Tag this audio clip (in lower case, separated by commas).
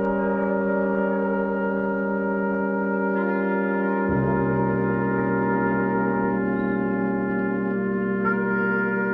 music